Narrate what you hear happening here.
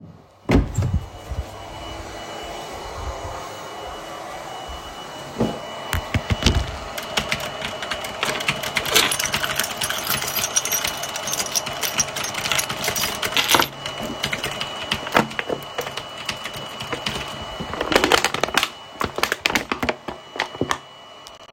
The vacuum is running as I open the door to my room to type on my keyboard fidget my keys and drink something